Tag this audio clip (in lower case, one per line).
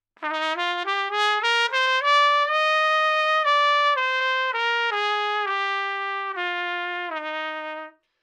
trumpet
music
brass instrument
musical instrument